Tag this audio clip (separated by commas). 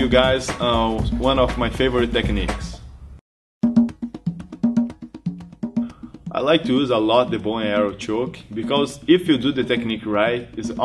Music, Speech